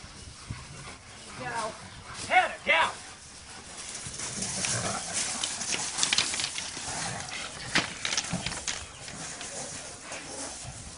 Birds are chirping, an adult male speaks, rustling occurs and shuffling occur, and a dog pants and grunts